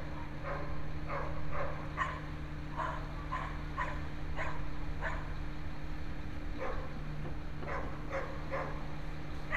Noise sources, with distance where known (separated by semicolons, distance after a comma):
dog barking or whining, near